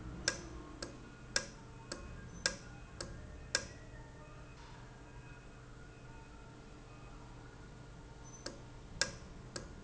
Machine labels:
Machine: valve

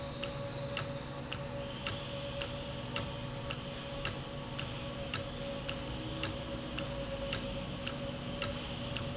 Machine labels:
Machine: valve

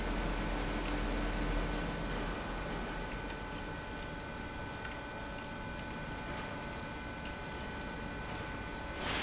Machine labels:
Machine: pump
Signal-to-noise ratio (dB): -6 dB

